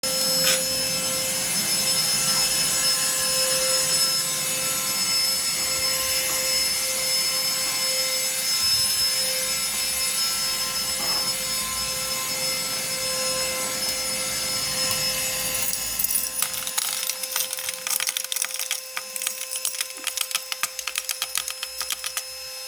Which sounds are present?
vacuum cleaner, keys